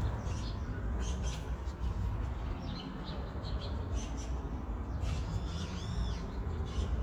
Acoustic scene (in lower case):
park